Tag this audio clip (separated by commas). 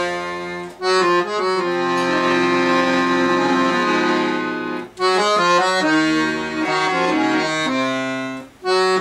playing accordion